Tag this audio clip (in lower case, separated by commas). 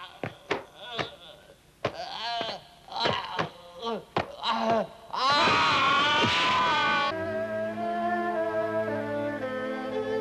music, speech, fiddle